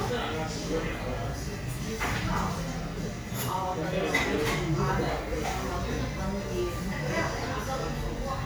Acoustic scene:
cafe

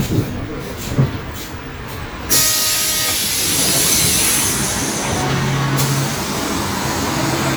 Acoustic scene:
bus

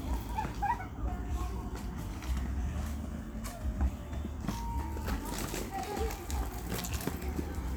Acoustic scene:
park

